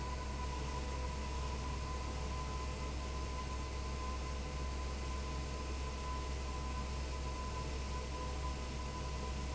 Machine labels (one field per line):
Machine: fan